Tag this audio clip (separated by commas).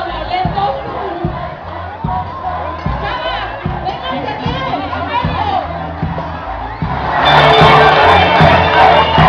Music, Speech, Crowd